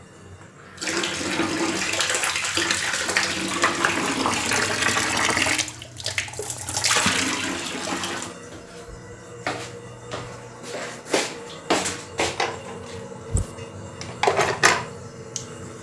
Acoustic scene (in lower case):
restroom